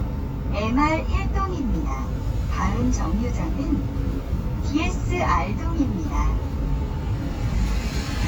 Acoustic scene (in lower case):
bus